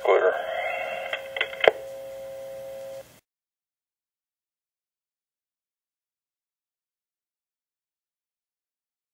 A man briefly speaks with dial tone in the background